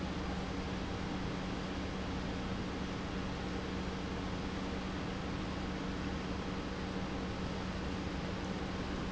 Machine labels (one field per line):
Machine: pump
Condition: normal